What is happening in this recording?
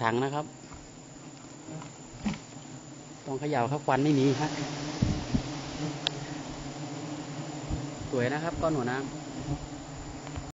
A man talks while insects buzz loudly